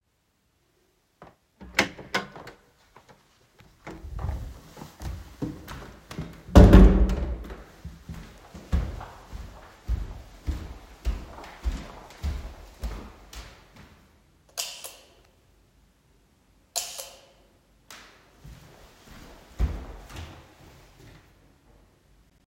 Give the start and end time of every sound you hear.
[1.55, 2.58] door
[3.77, 3.95] door
[3.85, 6.37] footsteps
[5.63, 7.74] door
[7.79, 13.97] footsteps
[14.53, 15.03] light switch
[16.67, 17.26] light switch
[17.88, 20.69] footsteps

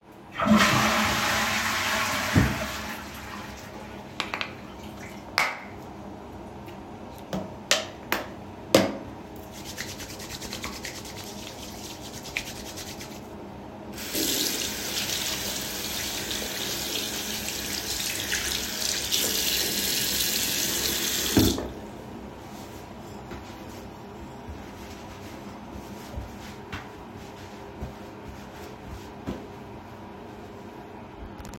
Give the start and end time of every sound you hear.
[0.30, 5.23] toilet flushing
[13.94, 21.67] running water

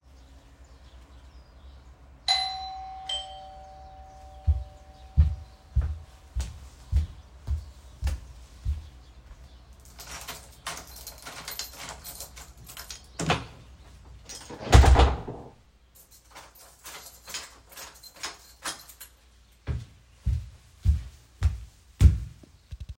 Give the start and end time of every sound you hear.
[2.07, 4.99] bell ringing
[4.32, 10.05] footsteps
[9.78, 13.50] keys
[10.05, 19.32] door
[16.21, 19.24] keys
[19.59, 22.97] footsteps

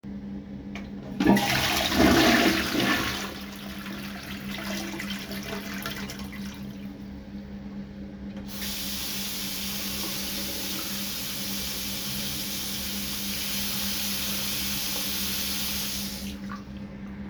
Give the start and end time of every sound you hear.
[1.15, 6.36] toilet flushing
[8.60, 16.23] running water

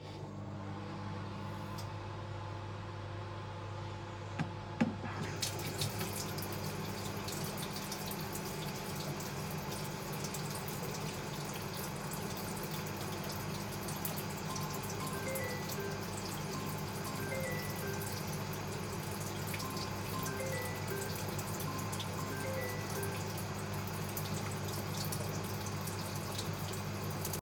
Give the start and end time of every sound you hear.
[0.04, 27.41] microwave
[5.16, 27.41] running water
[14.40, 23.23] phone ringing

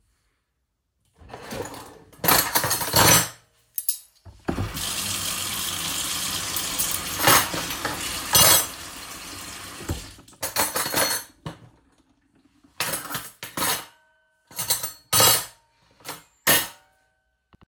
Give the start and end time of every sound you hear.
[1.16, 2.44] wardrobe or drawer
[1.31, 16.92] cutlery and dishes
[4.41, 10.30] running water

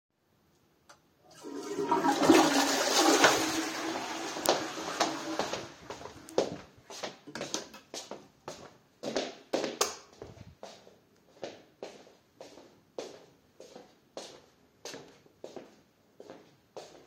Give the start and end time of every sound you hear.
[1.30, 6.17] toilet flushing
[4.41, 17.07] footsteps
[9.75, 10.16] light switch

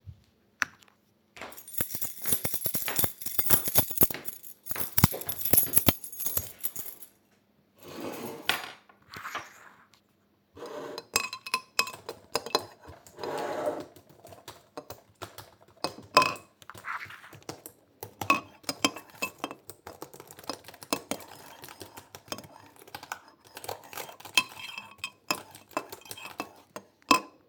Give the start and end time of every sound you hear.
[1.51, 7.25] keys
[2.29, 7.38] footsteps
[10.82, 12.87] cutlery and dishes
[11.96, 27.48] keyboard typing
[15.76, 20.89] cutlery and dishes
[21.62, 27.34] cutlery and dishes

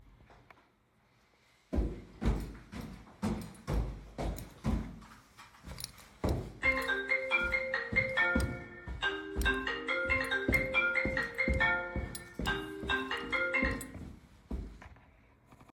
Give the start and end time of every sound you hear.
[1.68, 5.07] footsteps
[6.17, 14.63] footsteps
[6.59, 13.84] phone ringing

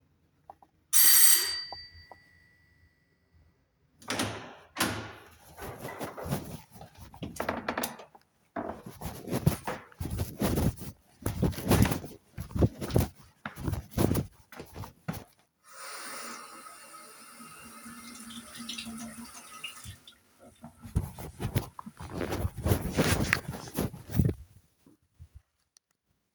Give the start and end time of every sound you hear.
[0.93, 3.24] bell ringing
[4.02, 5.21] door
[11.22, 14.89] footsteps
[15.68, 20.10] running water

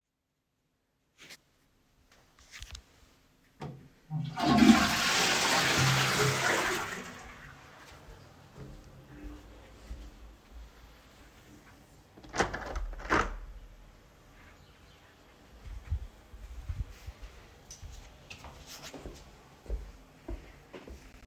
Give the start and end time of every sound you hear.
[4.10, 7.63] toilet flushing
[12.29, 13.51] window
[18.28, 21.27] footsteps

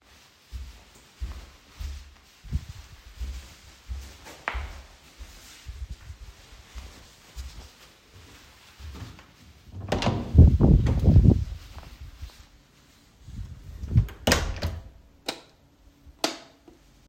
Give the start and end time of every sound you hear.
[0.00, 9.93] footsteps
[9.73, 10.29] door
[13.80, 14.85] door
[15.23, 16.44] light switch

